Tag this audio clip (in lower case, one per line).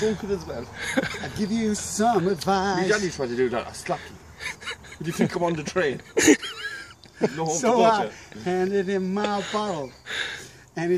outside, rural or natural
speech